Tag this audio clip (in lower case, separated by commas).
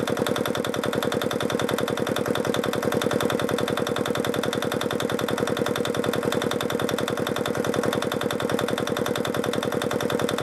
engine